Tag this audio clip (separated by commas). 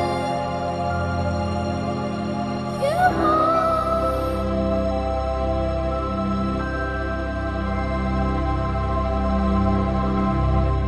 Singing, Background music